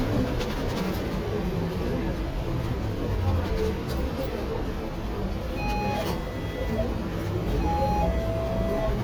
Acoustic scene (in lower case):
bus